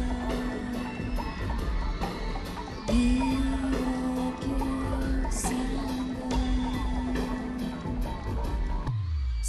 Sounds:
exciting music, music

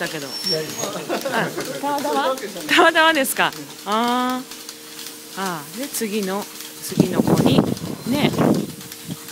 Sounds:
speech

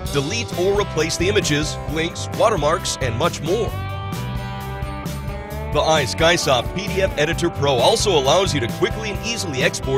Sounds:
speech, music

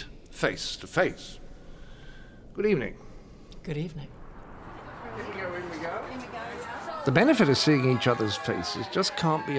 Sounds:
speech

